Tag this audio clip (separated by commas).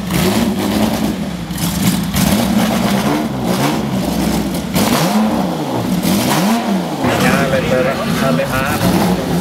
Speech